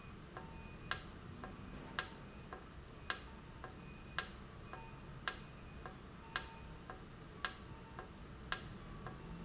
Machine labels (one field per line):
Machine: valve